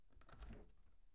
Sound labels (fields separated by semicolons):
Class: window; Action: opening